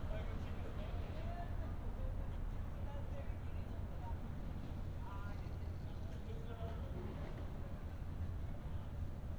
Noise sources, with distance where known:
person or small group talking, far

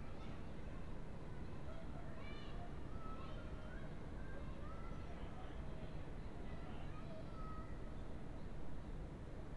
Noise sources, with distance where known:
background noise

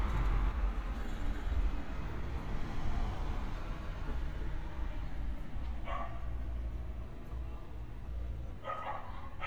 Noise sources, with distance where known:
dog barking or whining, near

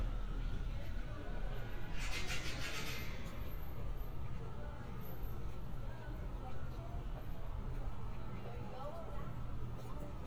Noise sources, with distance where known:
person or small group talking, near

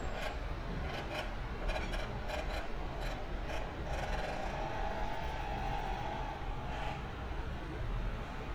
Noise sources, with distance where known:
small-sounding engine, near

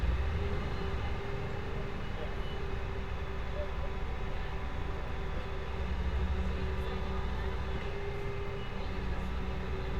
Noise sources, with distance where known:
large rotating saw, far

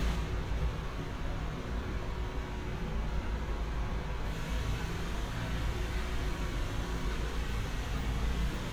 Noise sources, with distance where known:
engine of unclear size, near

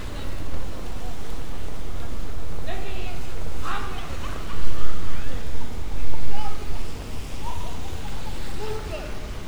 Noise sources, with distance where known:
person or small group shouting, far

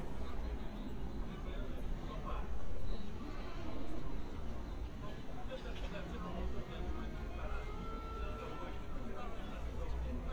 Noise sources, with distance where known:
music from a fixed source, near; person or small group talking

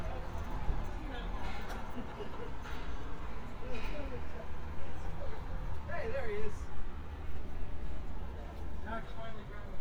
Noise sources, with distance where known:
person or small group talking, near

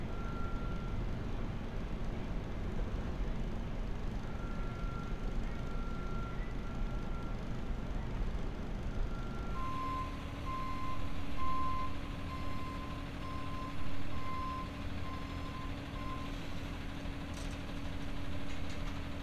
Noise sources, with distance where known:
engine of unclear size; reverse beeper

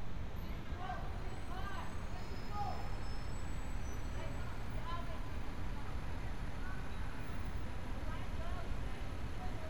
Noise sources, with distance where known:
person or small group talking, far

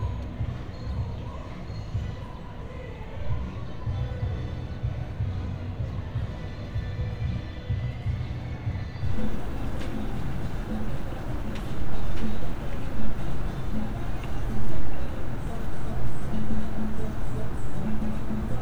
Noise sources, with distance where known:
music from a fixed source

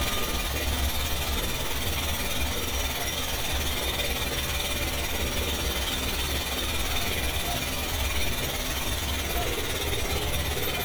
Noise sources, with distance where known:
jackhammer, near

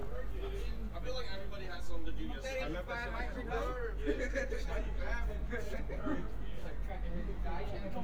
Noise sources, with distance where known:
person or small group talking, near

